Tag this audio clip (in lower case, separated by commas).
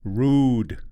speech, human voice, male speech